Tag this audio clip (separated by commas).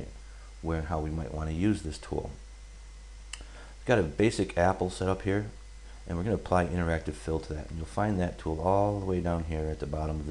Speech